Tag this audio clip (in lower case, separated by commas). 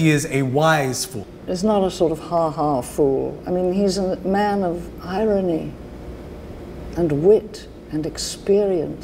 inside a small room, speech